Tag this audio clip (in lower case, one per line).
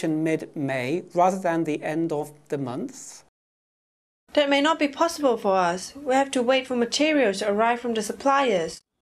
speech